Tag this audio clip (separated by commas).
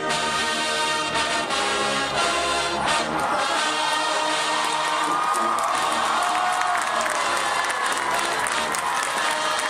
Speech, Music